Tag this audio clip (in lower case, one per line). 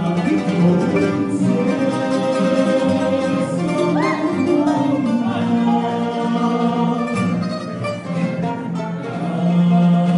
dance music
music